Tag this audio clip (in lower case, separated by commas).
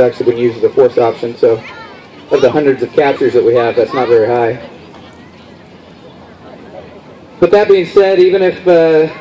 speech